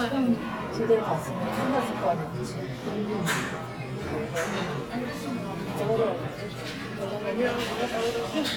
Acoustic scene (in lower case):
crowded indoor space